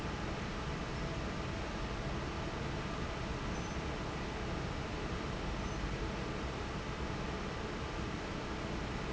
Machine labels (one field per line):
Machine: fan